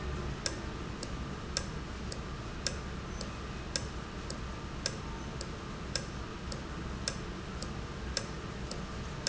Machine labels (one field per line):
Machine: valve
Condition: normal